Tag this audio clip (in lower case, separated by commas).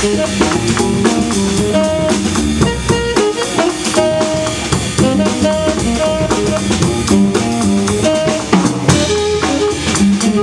music, jazz